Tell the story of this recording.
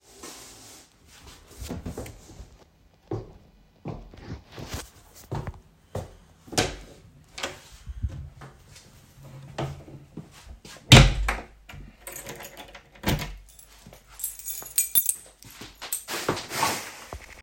I stood up from my chair, walked to the door, opened it, locked it and took out the key.